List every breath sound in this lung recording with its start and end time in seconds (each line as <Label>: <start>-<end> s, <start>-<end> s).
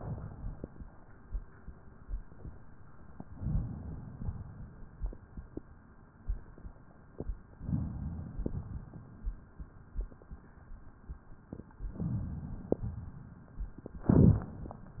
Inhalation: 3.30-4.12 s, 7.59-8.41 s, 11.99-12.81 s
Exhalation: 0.00-0.82 s, 4.16-4.97 s, 8.42-9.24 s, 12.86-13.83 s
Crackles: 0.00-0.82 s, 3.30-4.12 s, 4.16-4.97 s, 7.59-8.41 s, 8.42-9.24 s, 11.99-12.81 s, 12.86-13.83 s